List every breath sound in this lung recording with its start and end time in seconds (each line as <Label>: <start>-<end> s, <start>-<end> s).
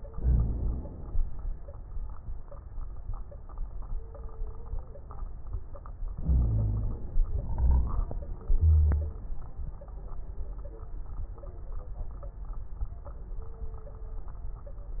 Inhalation: 0.13-1.17 s, 6.13-7.19 s
Exhalation: 7.20-8.20 s
Wheeze: 0.13-0.78 s, 6.24-6.98 s, 8.63-9.15 s